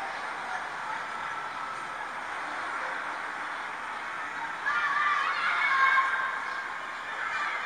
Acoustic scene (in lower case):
residential area